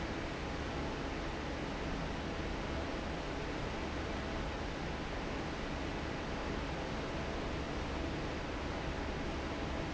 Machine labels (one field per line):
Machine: fan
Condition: normal